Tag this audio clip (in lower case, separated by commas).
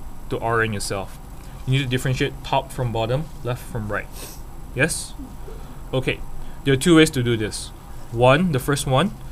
speech